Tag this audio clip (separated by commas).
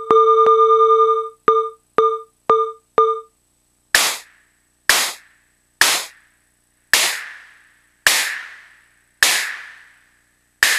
Synthesizer, Drum machine, Music